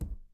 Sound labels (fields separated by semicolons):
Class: cupboard; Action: closing; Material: wooden